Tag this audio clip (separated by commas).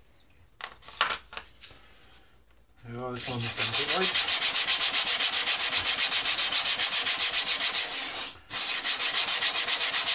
sharpen knife